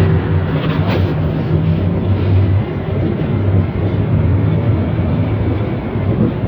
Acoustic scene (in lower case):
bus